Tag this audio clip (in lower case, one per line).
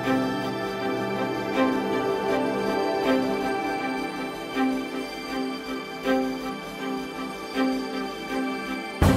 music